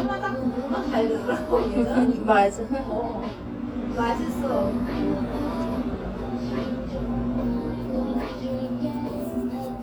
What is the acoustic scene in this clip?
cafe